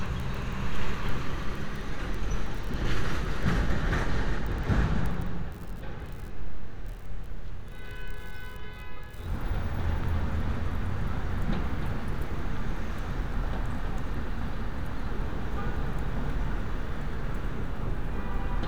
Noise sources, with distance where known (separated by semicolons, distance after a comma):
car horn